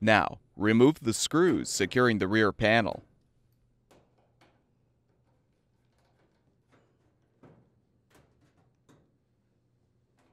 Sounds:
Speech

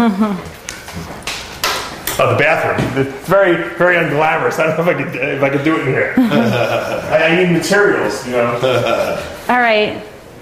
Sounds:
Speech, inside a small room

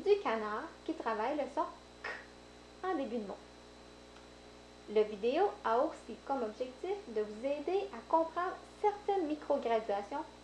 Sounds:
Speech

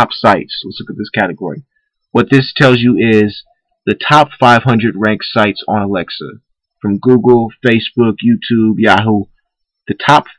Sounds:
monologue, Speech

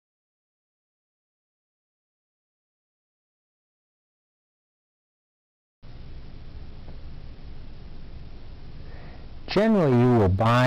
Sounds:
Speech

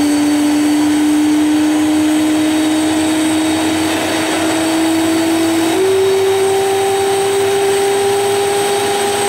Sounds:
vroom, Heavy engine (low frequency), Engine, Idling

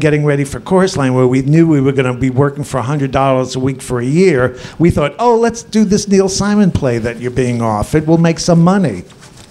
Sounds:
Speech

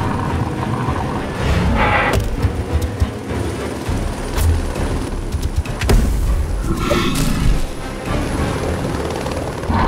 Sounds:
dinosaurs bellowing

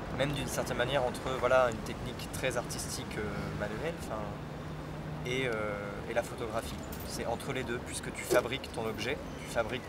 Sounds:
Speech

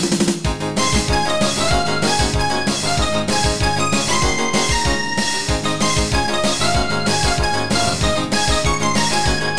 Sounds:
Music, Rhythm and blues, Disco

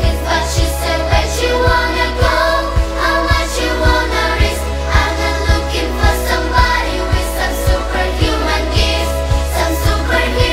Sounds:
child singing

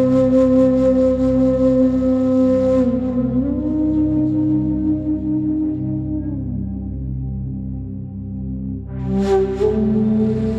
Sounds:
Music

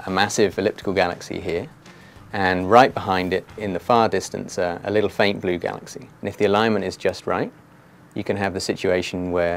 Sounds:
Speech, Music

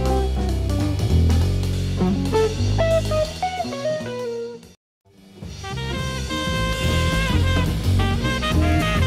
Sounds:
Snare drum, Hi-hat, Drum, Cymbal, Percussion, Rimshot, Drum kit

